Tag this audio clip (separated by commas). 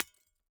Glass, Shatter